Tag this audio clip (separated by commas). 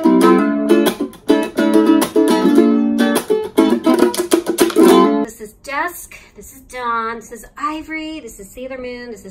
playing ukulele